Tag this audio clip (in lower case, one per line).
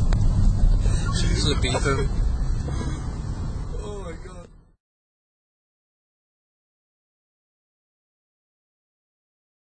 speech